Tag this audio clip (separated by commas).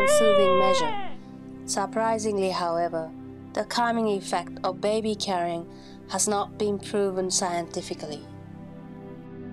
Speech, Music